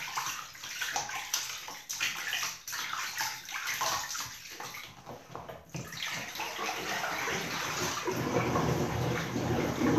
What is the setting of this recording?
restroom